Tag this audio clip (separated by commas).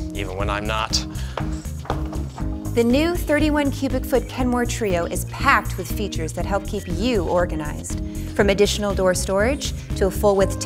Speech, Music